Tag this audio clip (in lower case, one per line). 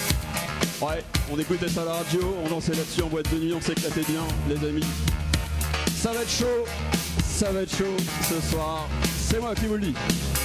speech
music